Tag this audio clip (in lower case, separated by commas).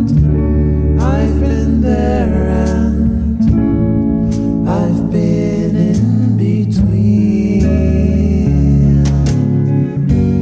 music